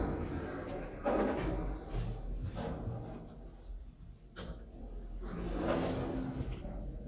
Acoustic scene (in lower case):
elevator